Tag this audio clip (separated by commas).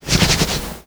Hands